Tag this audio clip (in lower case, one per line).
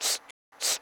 respiratory sounds